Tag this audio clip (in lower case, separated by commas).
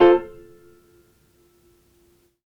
piano, musical instrument, music, keyboard (musical)